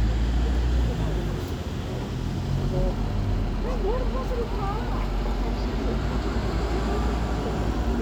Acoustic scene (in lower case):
street